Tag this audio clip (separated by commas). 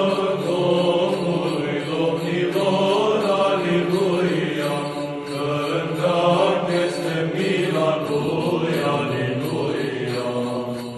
Music